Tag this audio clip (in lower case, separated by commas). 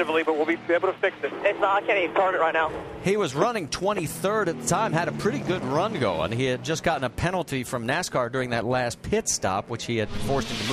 speech